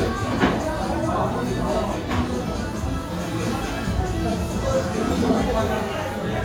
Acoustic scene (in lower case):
crowded indoor space